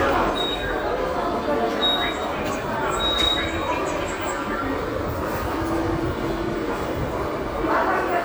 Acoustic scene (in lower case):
subway station